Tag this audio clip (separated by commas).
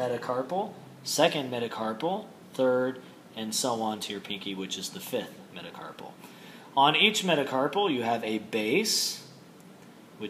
Speech, inside a small room